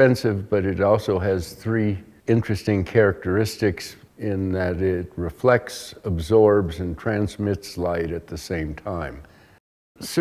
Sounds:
Speech

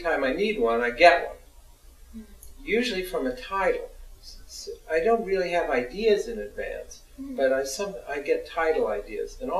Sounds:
Speech

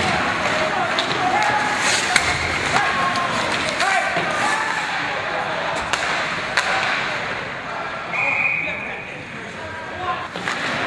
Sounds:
Speech, thud

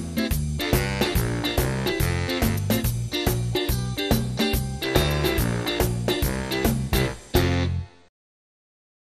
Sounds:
Music

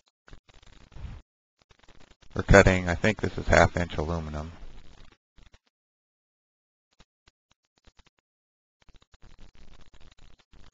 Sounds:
Speech

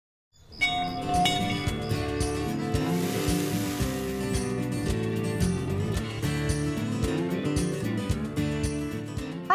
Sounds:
Speech, Music

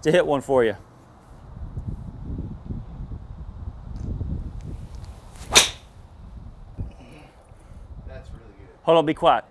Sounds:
Speech

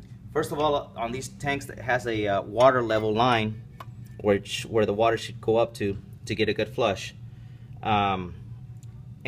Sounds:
Speech

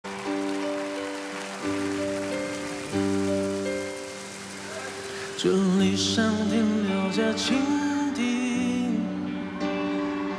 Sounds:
raining

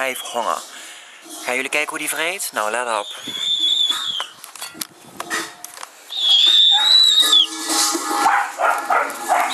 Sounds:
Speech

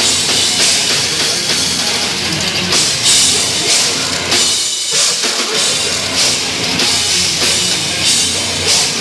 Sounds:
Music

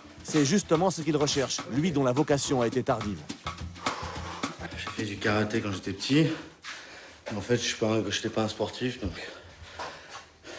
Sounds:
Speech, Music

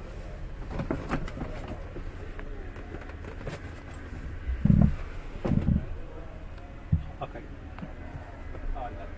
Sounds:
Speech

